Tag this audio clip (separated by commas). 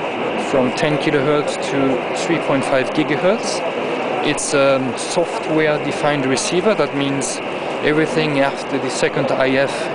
Speech